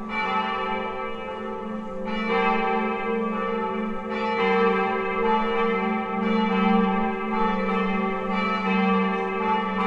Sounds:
church bell ringing, Church bell, Bell

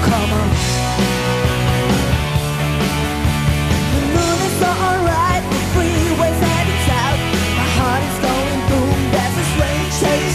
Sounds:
Music

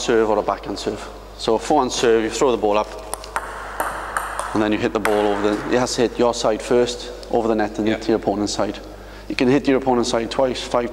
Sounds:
playing table tennis

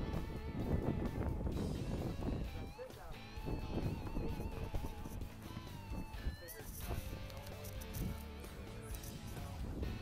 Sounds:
Speech, Music

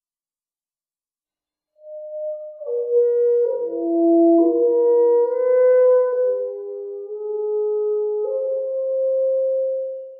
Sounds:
Saxophone, Classical music, Music, Musical instrument

